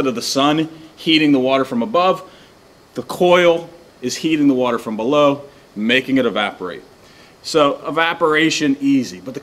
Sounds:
Speech

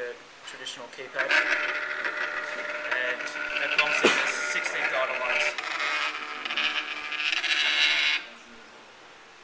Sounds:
Speech, inside a small room

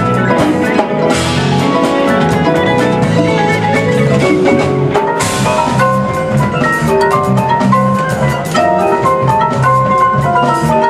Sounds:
Percussion, Music

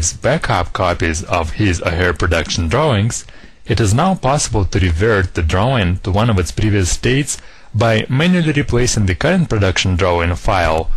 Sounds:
Speech

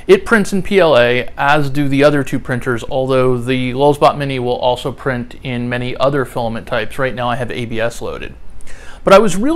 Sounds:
Speech

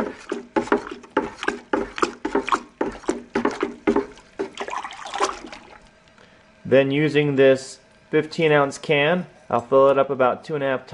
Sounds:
inside a small room, Speech

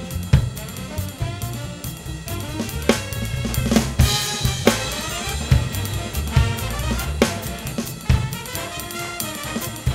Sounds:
Music, Drum, Drum kit, Musical instrument, Bass drum

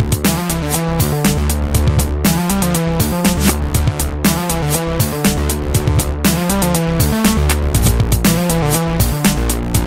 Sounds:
Music

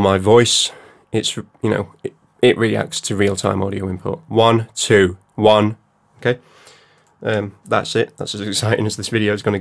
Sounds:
Speech

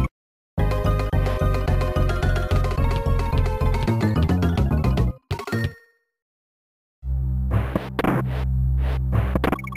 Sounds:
Music

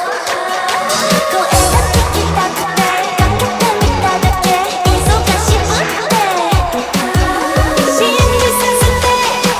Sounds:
Music

